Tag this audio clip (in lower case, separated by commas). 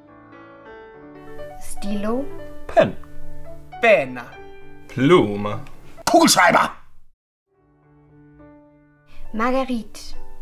music, speech